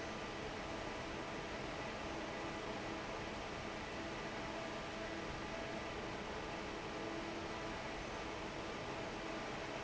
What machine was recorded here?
fan